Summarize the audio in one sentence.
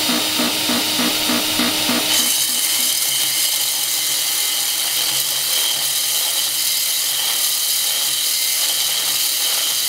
A large power tool saws into a hard material